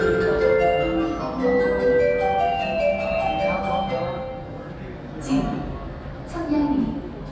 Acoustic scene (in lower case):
subway station